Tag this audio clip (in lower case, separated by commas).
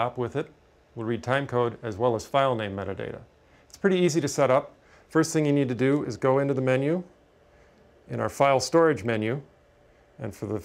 speech